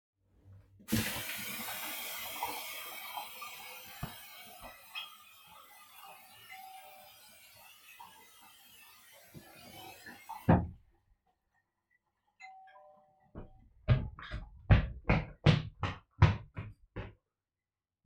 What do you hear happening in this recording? I was washing my hands, when i heard my doorbell ringing. I stopped the water, heard the bell again and went to the door.